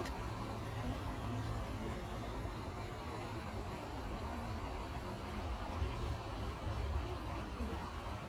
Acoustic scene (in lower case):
park